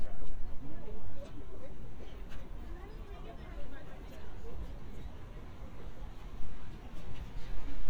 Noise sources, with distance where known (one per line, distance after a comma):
person or small group talking, far